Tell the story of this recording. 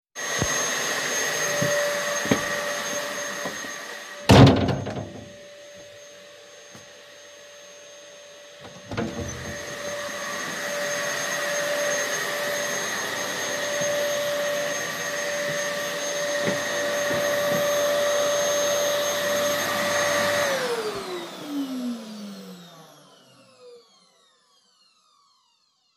Vacuum cleaner is running, i walk to a door, close it then open it again and disable the vacuum